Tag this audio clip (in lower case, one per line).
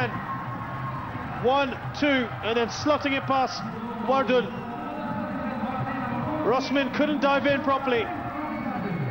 speech